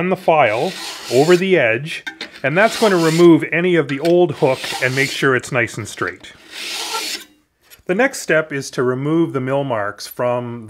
An adult male speaks, and metal scraping and clinking occur